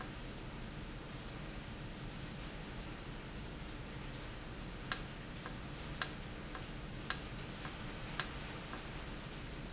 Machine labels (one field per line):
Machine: valve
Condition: normal